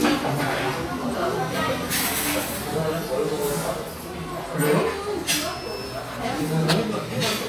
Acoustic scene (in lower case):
crowded indoor space